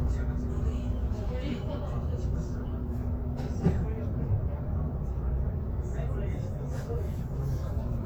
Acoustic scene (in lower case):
bus